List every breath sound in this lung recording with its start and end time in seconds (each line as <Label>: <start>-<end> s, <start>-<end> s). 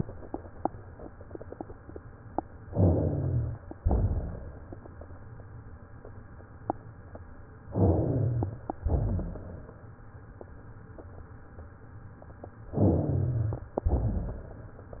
Inhalation: 2.69-3.66 s, 7.72-8.69 s, 12.75-13.72 s
Exhalation: 3.81-4.78 s, 8.82-9.79 s, 13.85-14.99 s
Rhonchi: 2.69-3.66 s, 3.81-4.78 s, 7.72-8.69 s, 8.82-9.79 s, 12.75-13.72 s, 13.85-14.99 s